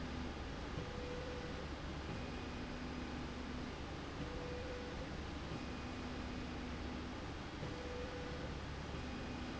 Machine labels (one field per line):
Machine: slide rail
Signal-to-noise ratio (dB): 0 dB